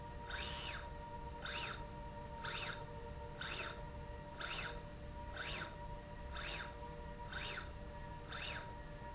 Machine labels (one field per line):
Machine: slide rail